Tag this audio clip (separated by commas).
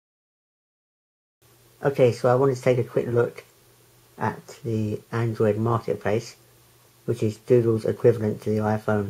Speech